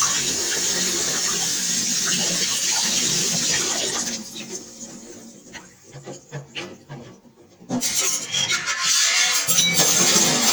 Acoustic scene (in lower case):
kitchen